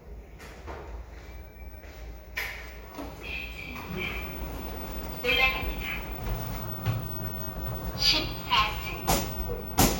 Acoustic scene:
elevator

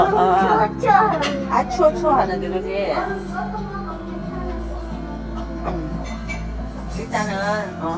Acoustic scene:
restaurant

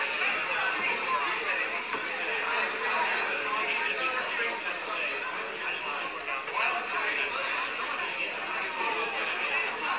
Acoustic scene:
crowded indoor space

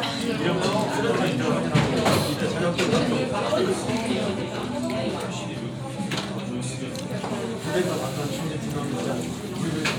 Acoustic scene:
restaurant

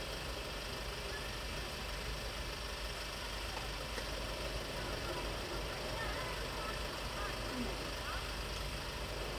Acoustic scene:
residential area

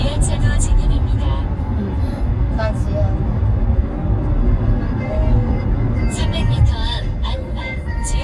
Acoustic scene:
car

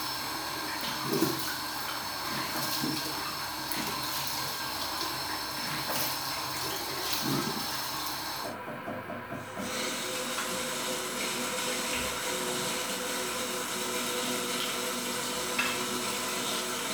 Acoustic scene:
restroom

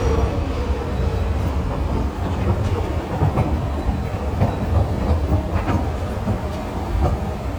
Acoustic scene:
subway station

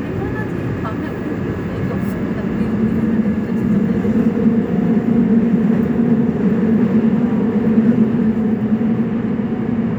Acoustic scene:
subway train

